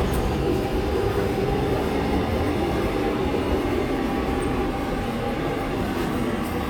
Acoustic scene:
subway station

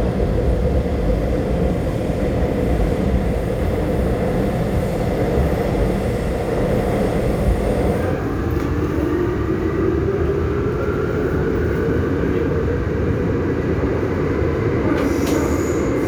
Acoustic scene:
subway train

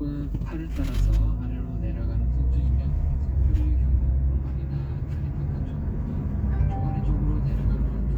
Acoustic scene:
car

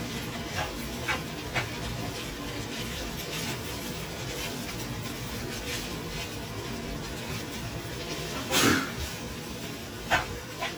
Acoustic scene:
kitchen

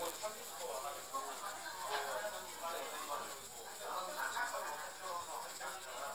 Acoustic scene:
restaurant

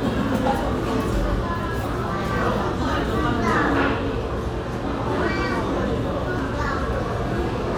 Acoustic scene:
cafe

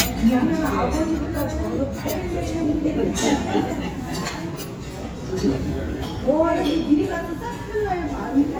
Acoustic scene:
restaurant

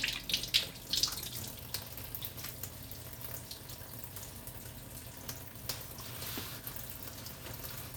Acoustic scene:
kitchen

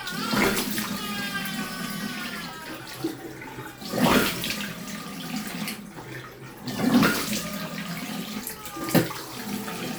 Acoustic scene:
restroom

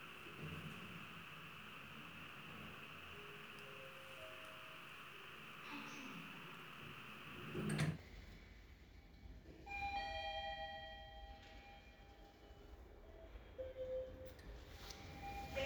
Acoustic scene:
elevator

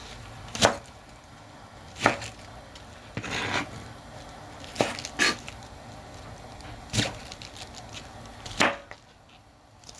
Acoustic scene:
kitchen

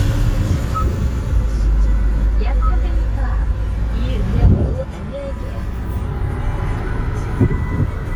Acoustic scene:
car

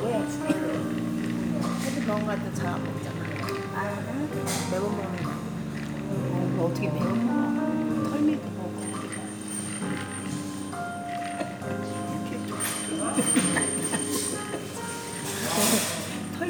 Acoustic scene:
cafe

